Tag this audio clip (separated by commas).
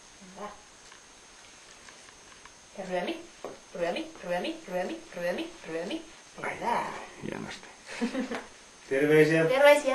Speech